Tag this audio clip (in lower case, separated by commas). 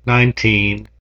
human voice